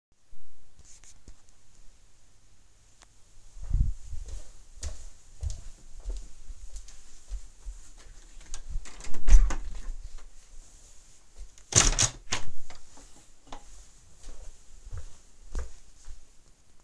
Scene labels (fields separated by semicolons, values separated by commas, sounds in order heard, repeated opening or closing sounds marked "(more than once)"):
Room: living room, bedroom; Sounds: footsteps, door, window